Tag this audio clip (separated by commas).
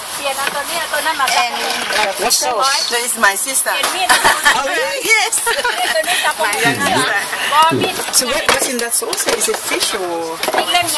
Speech, Liquid